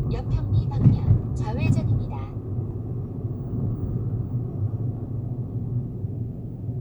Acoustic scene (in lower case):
car